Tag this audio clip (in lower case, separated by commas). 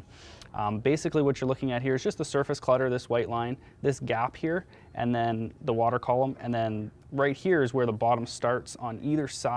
speech